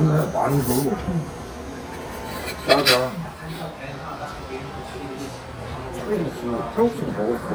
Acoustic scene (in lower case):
crowded indoor space